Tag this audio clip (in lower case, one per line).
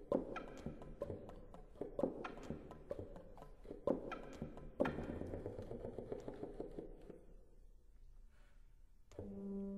walk